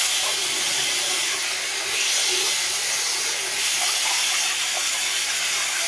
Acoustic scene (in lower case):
restroom